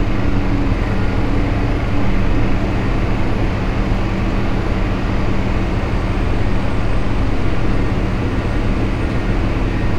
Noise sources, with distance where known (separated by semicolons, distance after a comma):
large-sounding engine, near